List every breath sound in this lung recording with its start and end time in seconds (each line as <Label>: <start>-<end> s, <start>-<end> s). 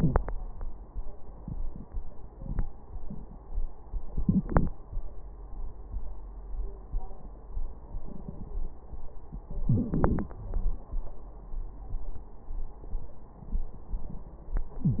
Inhalation: 4.19-4.77 s, 9.68-10.35 s
Wheeze: 9.66-9.84 s, 14.82-15.00 s